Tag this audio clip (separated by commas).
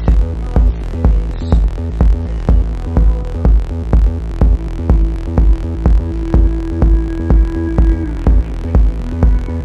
Electronica, Music